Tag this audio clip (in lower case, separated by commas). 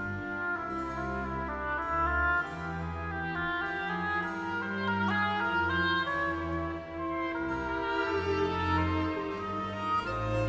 playing oboe